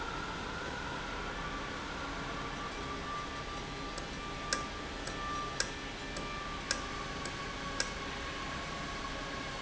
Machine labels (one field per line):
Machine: valve